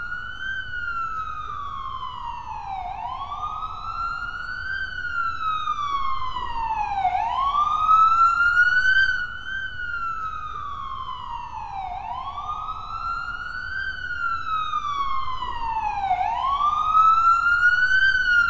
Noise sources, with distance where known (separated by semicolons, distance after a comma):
siren, near